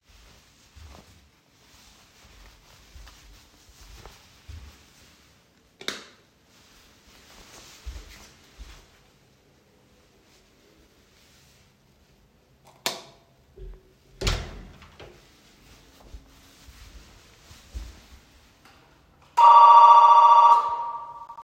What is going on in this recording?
put my shoes on went outside and called my neighbours